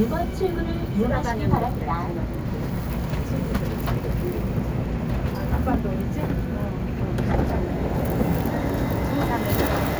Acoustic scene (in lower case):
subway station